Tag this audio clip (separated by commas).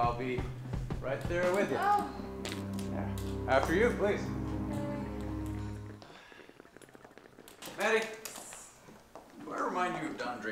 people farting